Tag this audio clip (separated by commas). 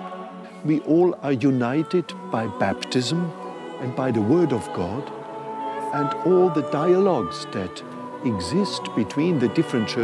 Speech, Music